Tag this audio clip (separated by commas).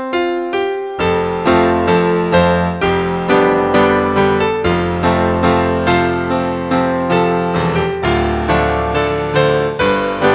Music